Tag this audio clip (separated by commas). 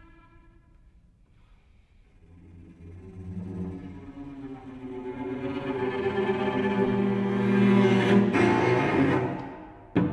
Bowed string instrument, Cello